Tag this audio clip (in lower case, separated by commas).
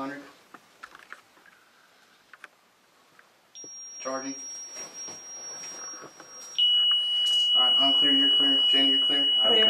speech, buzzer, inside a small room